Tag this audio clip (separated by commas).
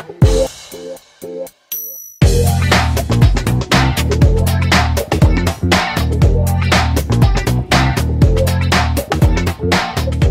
Music